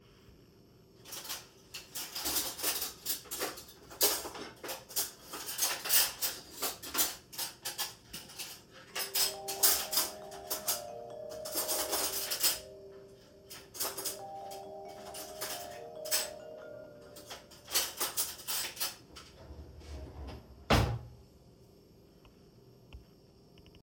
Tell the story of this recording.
While I was sorting the cutlery, my phone rang. I stopped the ringing and closed the drawer.